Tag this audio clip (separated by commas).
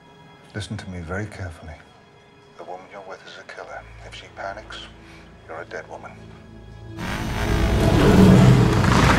Music, Speech